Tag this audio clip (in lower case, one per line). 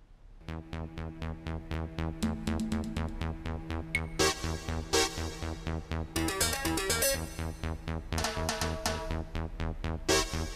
mouse pattering